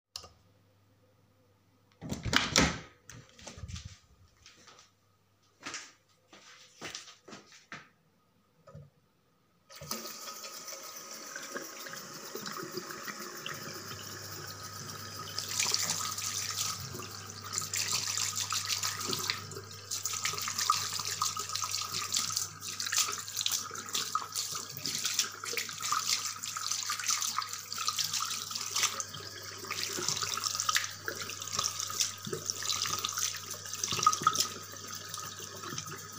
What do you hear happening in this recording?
I turned on light, opened the door, started basin water, started face washing.